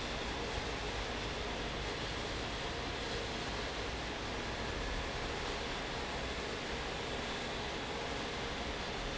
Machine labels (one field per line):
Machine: fan